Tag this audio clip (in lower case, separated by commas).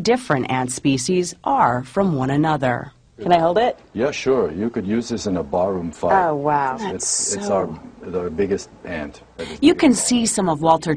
speech